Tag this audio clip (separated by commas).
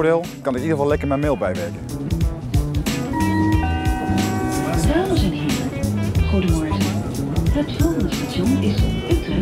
Speech, Music